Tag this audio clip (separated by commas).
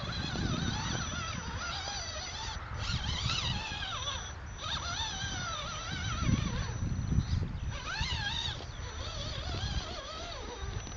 Truck